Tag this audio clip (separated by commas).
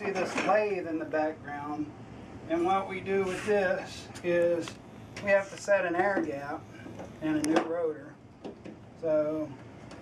Speech